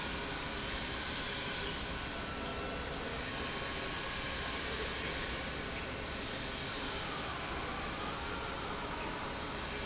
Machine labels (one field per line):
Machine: pump